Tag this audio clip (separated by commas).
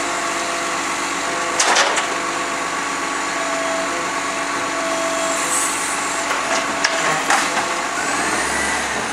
Vehicle, Truck, Vehicle horn